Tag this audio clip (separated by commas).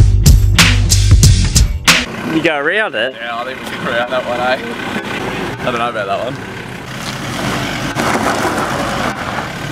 Music, Speech, Tire squeal, Vehicle, Truck